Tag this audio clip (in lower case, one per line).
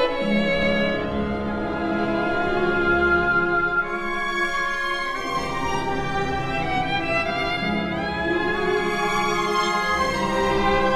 music
musical instrument
fiddle